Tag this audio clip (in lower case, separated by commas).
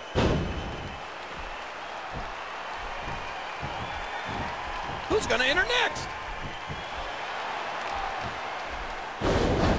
speech